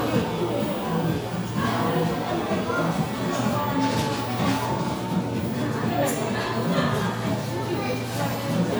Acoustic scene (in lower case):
crowded indoor space